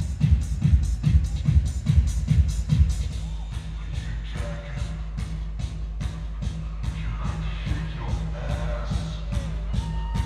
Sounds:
Music, Techno, Electronic music

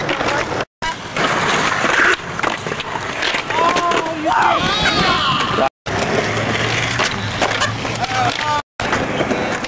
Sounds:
Speech

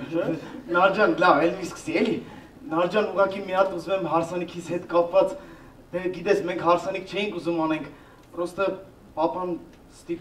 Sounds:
Speech

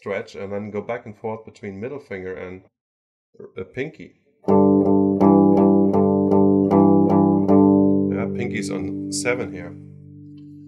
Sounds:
Music, Musical instrument, Guitar, Acoustic guitar

